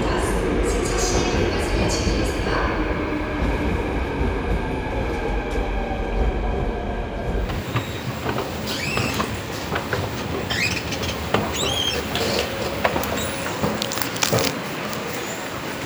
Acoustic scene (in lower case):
subway station